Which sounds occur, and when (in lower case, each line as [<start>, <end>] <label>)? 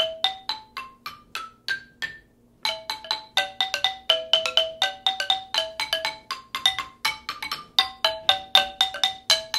[0.00, 2.35] music
[0.00, 9.55] mechanisms
[2.62, 9.55] music